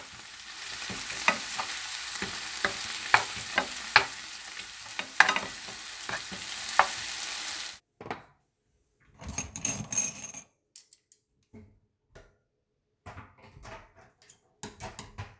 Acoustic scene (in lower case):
kitchen